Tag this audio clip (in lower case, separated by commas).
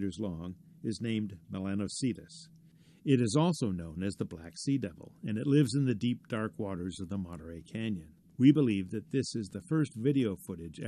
speech